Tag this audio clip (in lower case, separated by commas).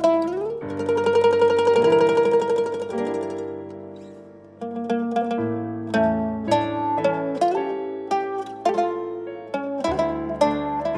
music, mandolin